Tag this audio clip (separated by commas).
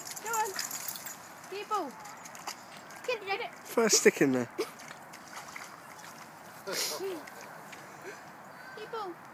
Speech